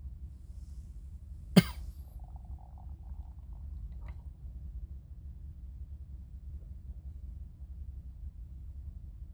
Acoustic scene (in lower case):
car